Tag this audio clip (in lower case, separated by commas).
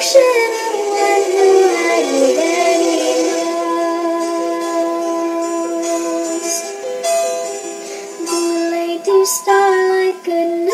music, lullaby